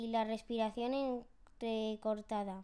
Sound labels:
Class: speech